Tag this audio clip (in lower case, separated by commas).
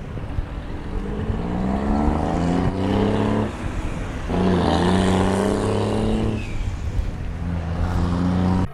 engine, vroom